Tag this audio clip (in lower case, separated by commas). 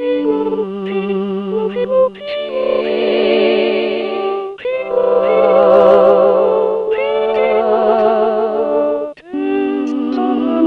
music